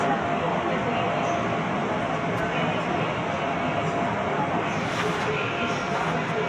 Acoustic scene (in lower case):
subway train